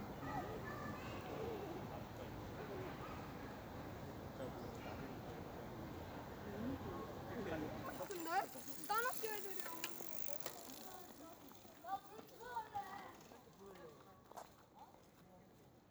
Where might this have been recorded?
in a park